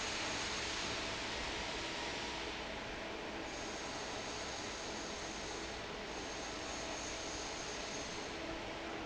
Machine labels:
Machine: fan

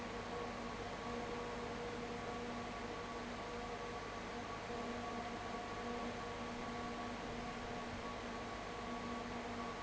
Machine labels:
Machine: fan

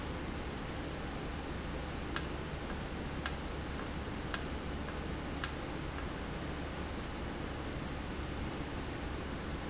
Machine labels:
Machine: valve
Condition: normal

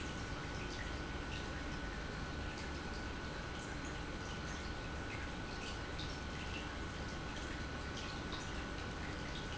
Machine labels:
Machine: pump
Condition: normal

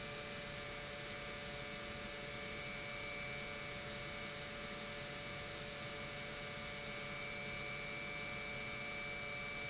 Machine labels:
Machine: pump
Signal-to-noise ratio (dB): 6 dB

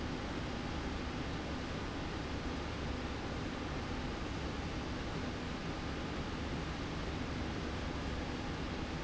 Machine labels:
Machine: slide rail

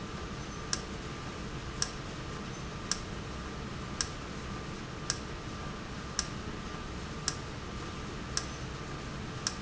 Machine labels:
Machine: valve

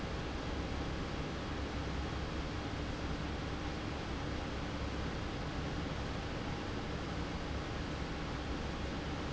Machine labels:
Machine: fan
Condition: normal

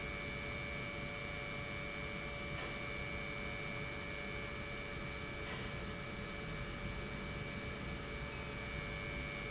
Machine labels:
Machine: pump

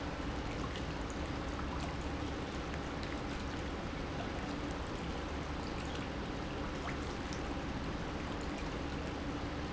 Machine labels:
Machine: pump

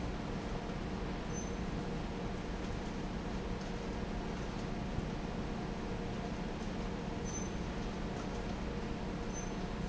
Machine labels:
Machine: fan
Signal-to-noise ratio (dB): -6 dB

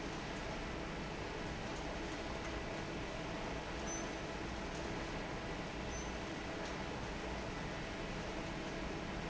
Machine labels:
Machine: fan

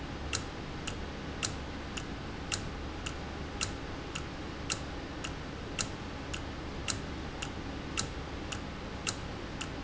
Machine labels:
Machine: valve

